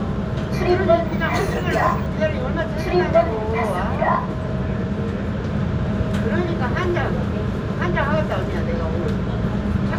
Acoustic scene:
subway train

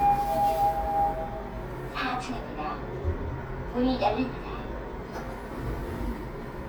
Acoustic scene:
elevator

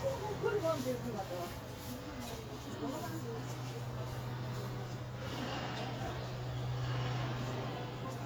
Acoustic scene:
residential area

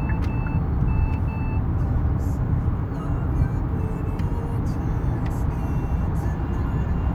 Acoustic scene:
car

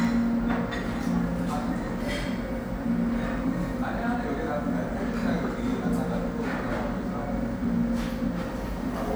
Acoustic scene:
restaurant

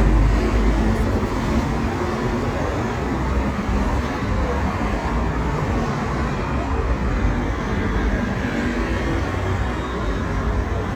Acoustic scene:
street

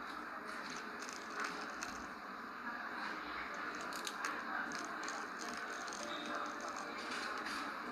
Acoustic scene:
cafe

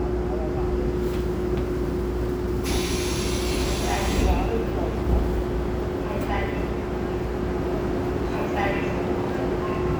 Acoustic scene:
subway train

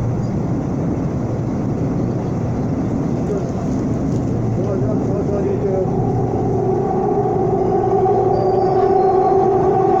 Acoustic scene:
subway train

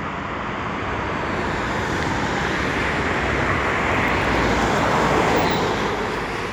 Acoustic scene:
street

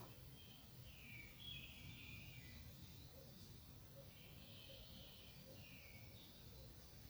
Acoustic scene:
park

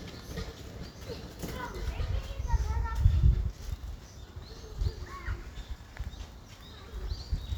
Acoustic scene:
park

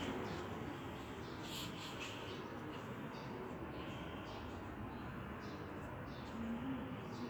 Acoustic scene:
residential area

